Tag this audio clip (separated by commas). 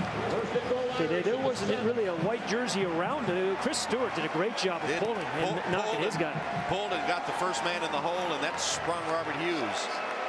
Speech